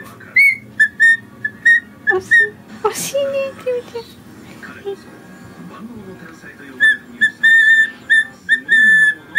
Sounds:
speech

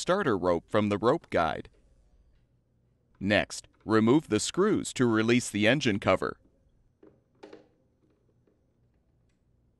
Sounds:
speech

